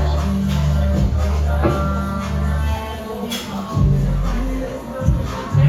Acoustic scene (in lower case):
cafe